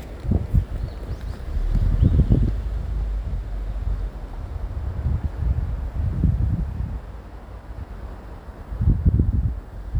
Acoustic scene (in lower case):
residential area